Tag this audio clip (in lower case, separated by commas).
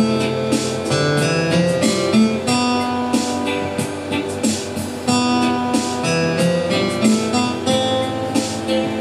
sad music, music